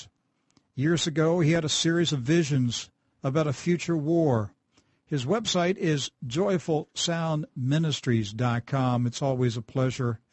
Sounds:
speech

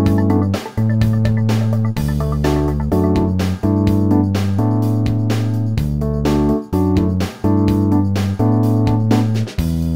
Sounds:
music

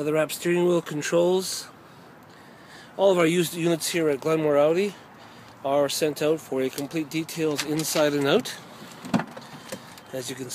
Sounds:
speech

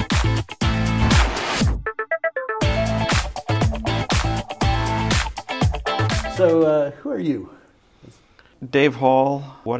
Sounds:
music
speech

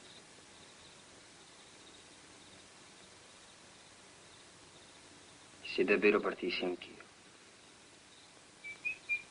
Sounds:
speech

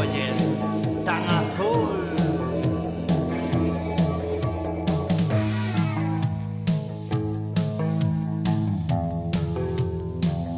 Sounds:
music

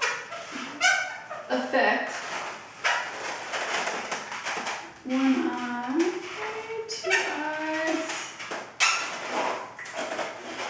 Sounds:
speech
inside a small room

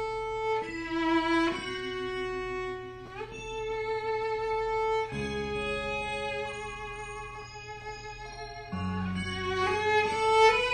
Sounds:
fiddle
music
musical instrument

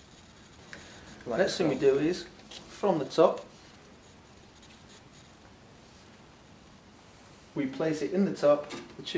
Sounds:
speech
inside a large room or hall

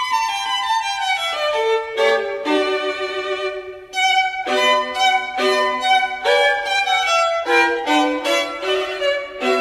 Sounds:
musical instrument
music
fiddle

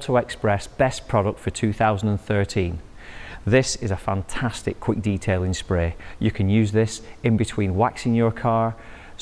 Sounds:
speech

